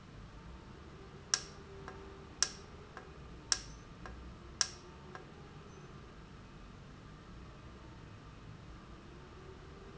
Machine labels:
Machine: valve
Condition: normal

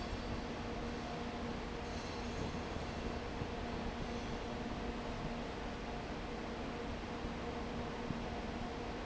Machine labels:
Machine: fan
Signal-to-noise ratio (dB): 0 dB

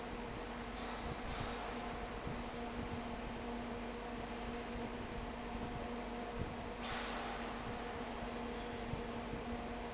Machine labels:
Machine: fan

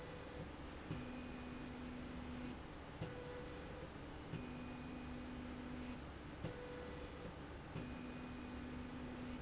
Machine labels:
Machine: slide rail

